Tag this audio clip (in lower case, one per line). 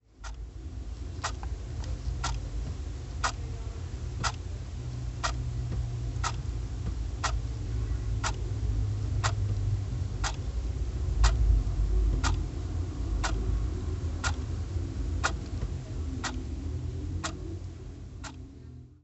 clock
mechanisms